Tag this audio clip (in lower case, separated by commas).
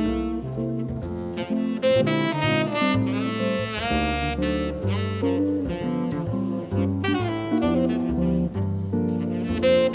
jazz, music